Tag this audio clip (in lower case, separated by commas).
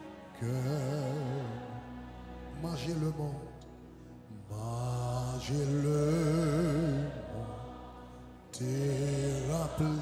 music